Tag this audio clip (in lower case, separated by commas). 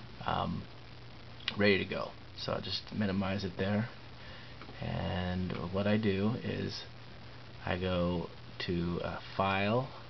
speech